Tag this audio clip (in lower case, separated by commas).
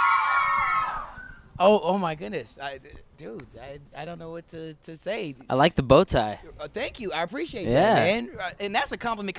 speech